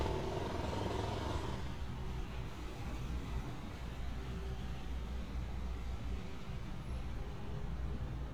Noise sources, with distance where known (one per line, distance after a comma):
jackhammer